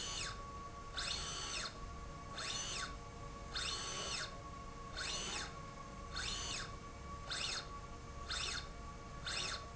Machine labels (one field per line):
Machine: slide rail